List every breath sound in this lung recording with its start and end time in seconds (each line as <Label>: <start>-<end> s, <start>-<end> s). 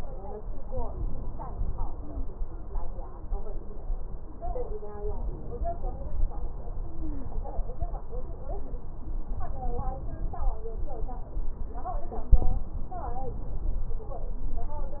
Stridor: 6.79-7.42 s